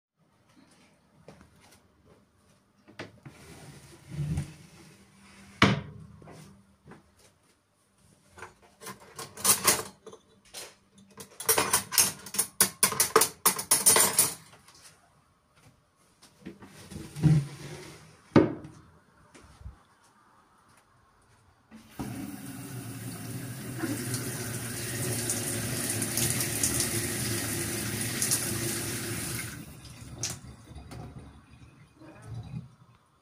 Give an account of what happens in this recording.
Open kitchen drawer, Move cutlery, Turn on running water, Turn off wate